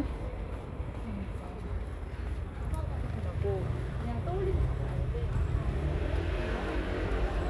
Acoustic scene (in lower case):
residential area